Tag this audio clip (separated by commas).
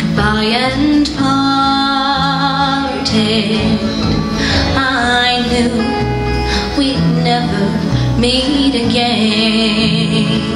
Music